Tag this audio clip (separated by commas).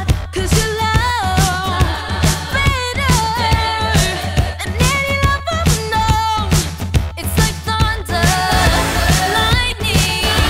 Music, Female singing